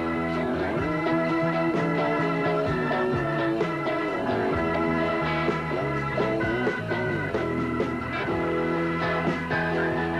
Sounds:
rock and roll

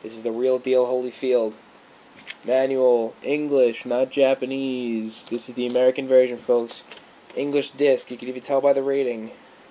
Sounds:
speech

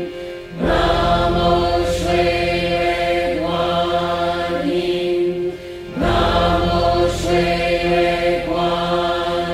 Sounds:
mantra

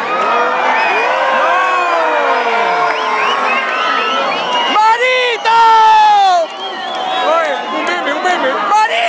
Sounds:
cheering, crowd

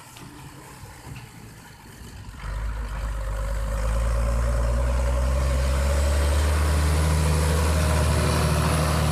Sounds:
vehicle, revving

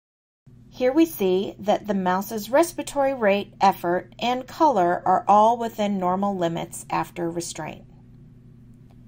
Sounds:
speech

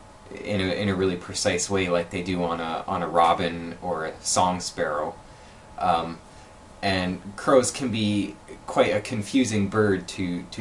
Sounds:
speech

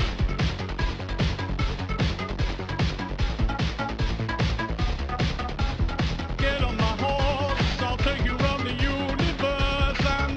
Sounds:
music

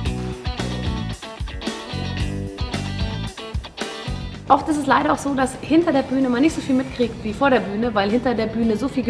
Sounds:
music, speech

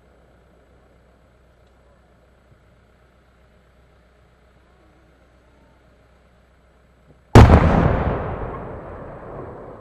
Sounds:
lighting firecrackers

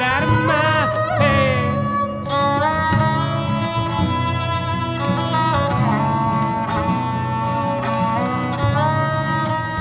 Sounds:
tabla, drum, percussion

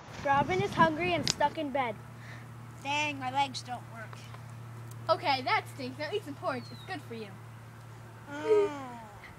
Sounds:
speech

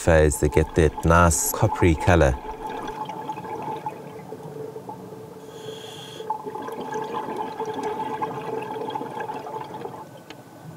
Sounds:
speech

